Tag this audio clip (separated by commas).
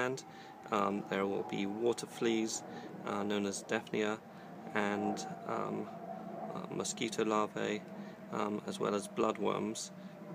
Speech